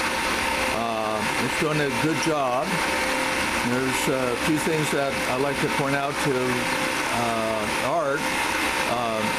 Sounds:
Power tool, Speech, Tools

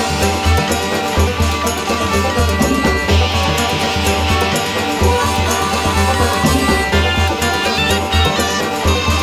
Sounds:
Music

